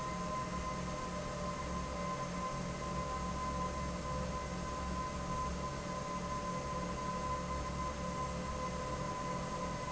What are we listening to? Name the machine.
fan